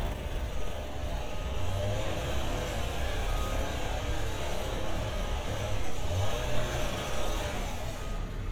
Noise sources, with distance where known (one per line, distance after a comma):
small or medium rotating saw, near